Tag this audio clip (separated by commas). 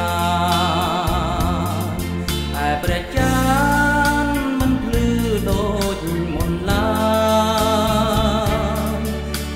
Soul music, Theme music, Wedding music, Music